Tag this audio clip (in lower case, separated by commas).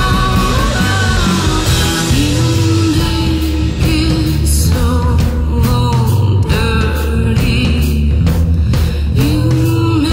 roll, music